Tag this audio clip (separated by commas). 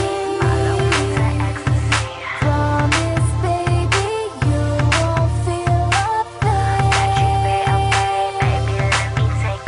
Pop music, Music